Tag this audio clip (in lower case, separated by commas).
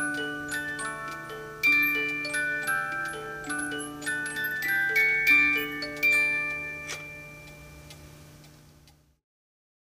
tick-tock, tick